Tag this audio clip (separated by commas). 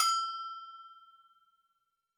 Bell